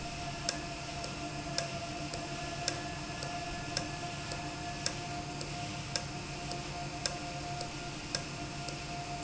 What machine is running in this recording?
valve